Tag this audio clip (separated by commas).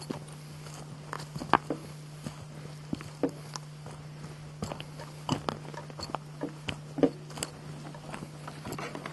Walk